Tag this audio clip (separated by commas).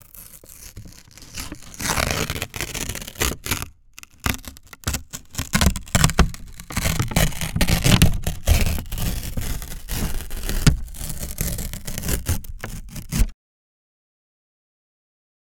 Tearing